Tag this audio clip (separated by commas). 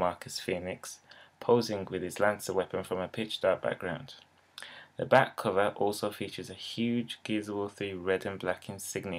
Speech